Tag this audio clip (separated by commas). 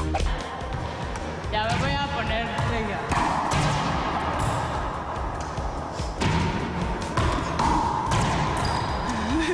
playing squash